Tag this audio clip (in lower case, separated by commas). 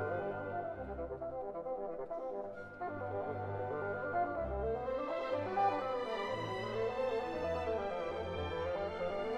musical instrument, orchestra, cello, classical music, music, bowed string instrument